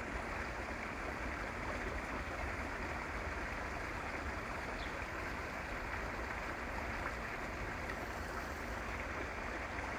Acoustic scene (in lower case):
park